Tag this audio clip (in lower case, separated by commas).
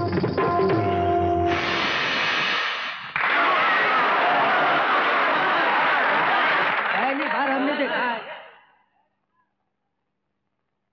music of bollywood, speech, music